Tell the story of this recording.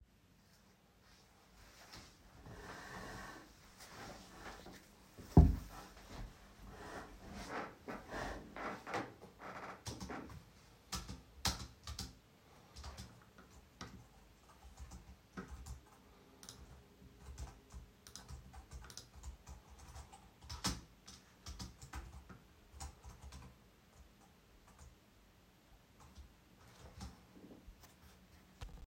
I sat down at my desk and started working on my computer while interacting with objects on the desk.